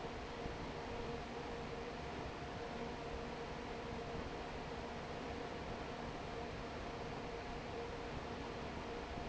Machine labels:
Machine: fan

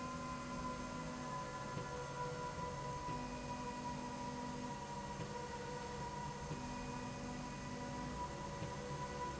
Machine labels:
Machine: slide rail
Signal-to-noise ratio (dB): 0 dB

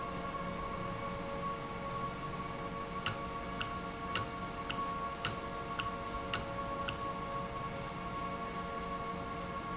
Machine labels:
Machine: valve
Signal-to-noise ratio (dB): -6 dB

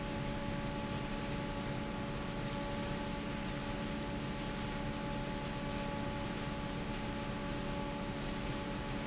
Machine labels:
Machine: fan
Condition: normal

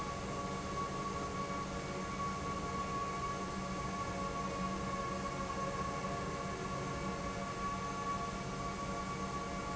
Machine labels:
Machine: pump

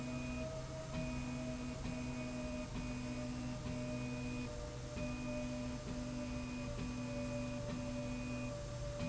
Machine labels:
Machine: slide rail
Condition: normal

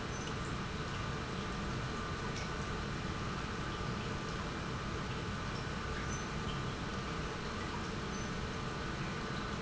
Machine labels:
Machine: pump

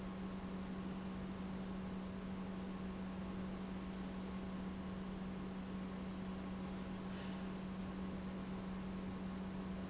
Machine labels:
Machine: pump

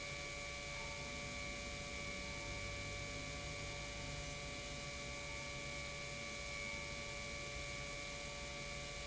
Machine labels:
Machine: pump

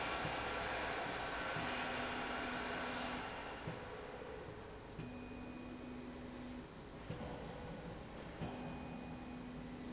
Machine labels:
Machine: slide rail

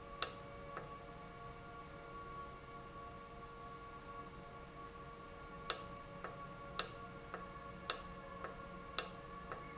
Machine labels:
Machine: valve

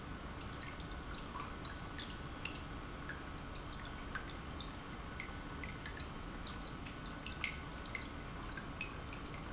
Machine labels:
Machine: pump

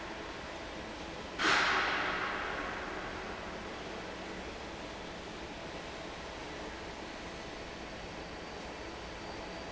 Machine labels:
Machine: fan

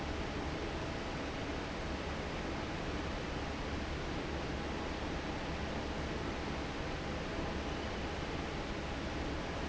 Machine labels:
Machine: fan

